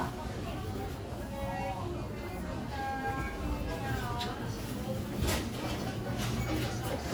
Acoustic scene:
crowded indoor space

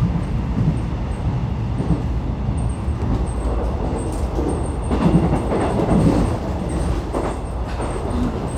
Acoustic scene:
subway train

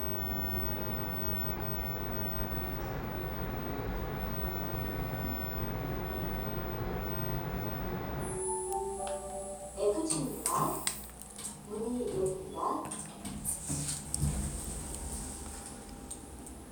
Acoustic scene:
elevator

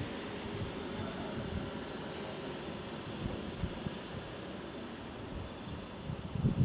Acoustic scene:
street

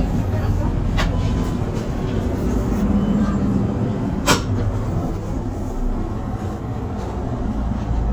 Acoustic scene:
bus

